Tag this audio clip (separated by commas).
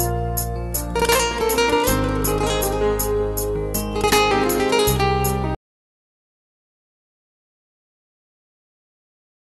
Happy music, Music